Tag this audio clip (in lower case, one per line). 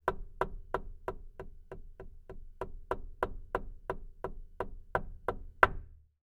home sounds
door
knock